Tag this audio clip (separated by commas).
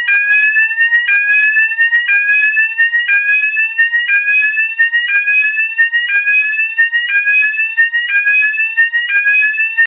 Fire alarm